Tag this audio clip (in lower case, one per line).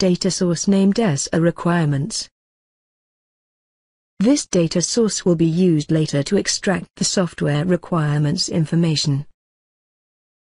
speech